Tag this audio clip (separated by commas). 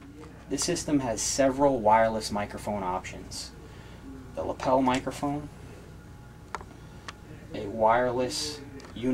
Speech